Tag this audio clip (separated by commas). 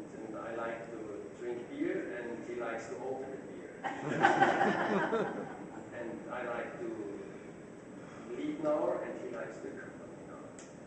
Speech